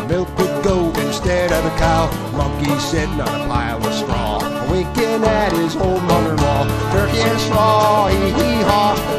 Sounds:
music

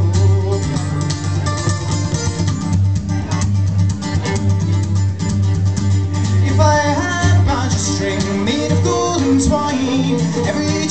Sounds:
music

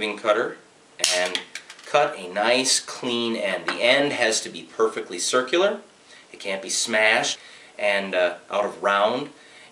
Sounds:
speech

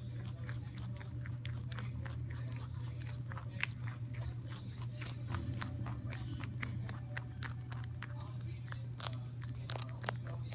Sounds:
music, inside a small room

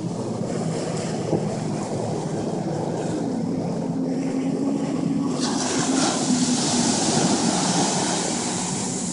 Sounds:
ocean

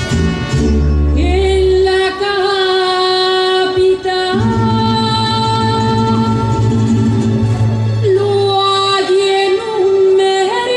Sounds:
independent music, music, rhythm and blues

